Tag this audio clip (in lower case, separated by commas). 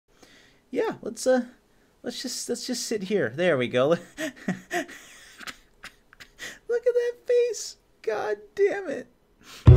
speech, music